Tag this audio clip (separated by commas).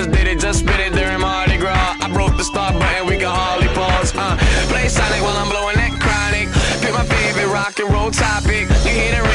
Exciting music, Music